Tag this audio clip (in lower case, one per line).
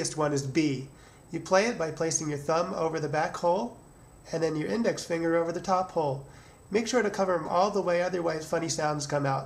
speech